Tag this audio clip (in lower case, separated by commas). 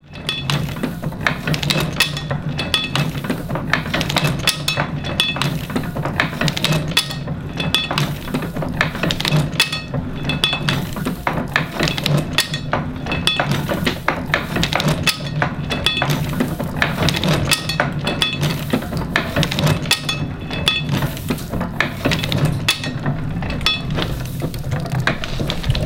mechanisms